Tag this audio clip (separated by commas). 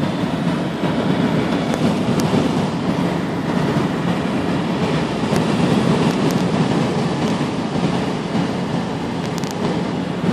Aircraft, Vehicle, Fixed-wing aircraft